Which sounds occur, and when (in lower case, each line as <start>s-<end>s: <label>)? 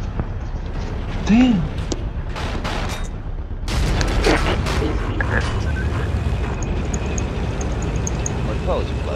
0.0s-9.1s: video game sound
0.0s-9.1s: wind noise (microphone)
0.2s-0.2s: tick
0.3s-1.0s: generic impact sounds
1.1s-1.6s: generic impact sounds
1.2s-1.6s: man speaking
1.2s-1.3s: tick
1.4s-1.4s: tick
1.9s-1.9s: tick
2.3s-3.0s: gunfire
3.6s-5.6s: gunfire
4.0s-4.0s: tick
4.1s-5.5s: man speaking
4.3s-4.3s: tick
5.7s-5.8s: beep
6.6s-6.7s: tick
6.9s-6.9s: tick
7.1s-7.2s: tick
7.6s-7.6s: tick
7.8s-7.8s: tick
8.0s-8.1s: tick
8.2s-8.3s: tick
8.4s-9.1s: man speaking